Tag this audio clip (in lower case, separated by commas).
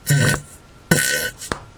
fart